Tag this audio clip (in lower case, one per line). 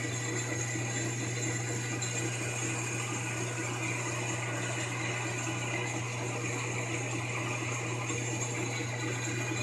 lathe spinning